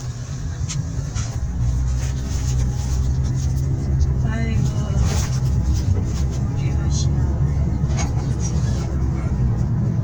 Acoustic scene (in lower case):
car